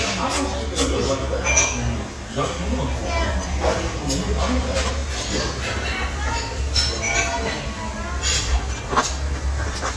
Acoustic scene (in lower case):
crowded indoor space